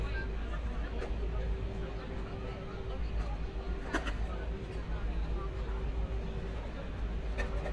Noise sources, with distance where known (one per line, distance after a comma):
person or small group talking, near